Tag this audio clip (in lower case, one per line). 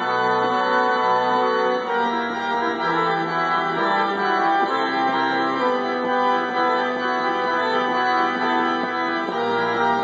playing electronic organ